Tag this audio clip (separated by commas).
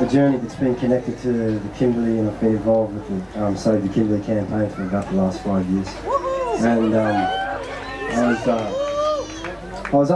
Speech